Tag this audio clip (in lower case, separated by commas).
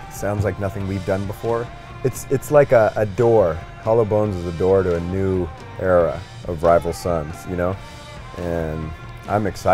speech, music